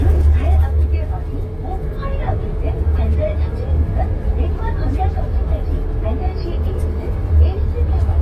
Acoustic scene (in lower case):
bus